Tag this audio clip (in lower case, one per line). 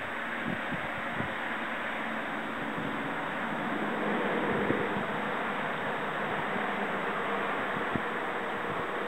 boat
kayak rowing
rowboat